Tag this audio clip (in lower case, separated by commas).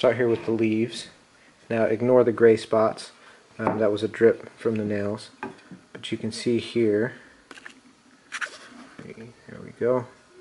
wood, speech, inside a small room